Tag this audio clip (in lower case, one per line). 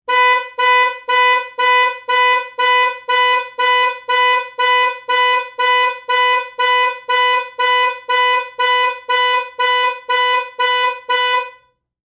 vehicle
alarm
motor vehicle (road)
car